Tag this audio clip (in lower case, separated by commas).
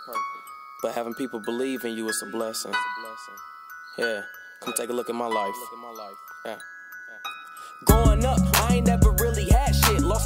marimba, glockenspiel, mallet percussion, chime